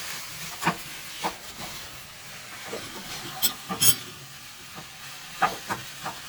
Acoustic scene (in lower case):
kitchen